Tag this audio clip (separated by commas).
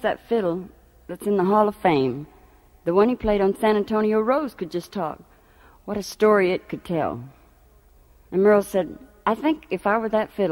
Speech